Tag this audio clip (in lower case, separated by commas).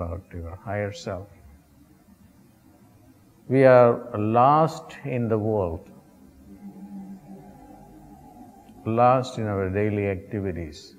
speech, inside a small room